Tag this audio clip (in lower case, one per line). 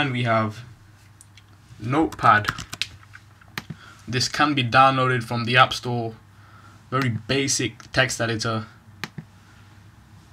speech